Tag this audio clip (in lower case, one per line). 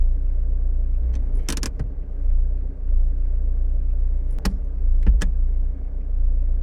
engine
motor vehicle (road)
car
vehicle